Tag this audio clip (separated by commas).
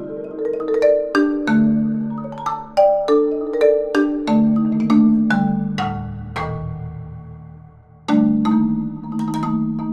Percussion, Music, xylophone, Musical instrument